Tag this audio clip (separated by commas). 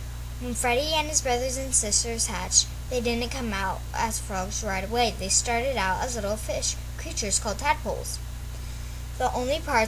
Speech